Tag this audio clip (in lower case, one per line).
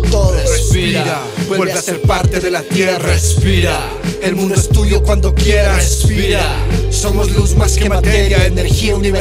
rapping
music
hip hop music